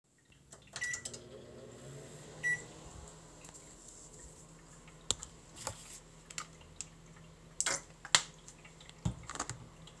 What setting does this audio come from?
kitchen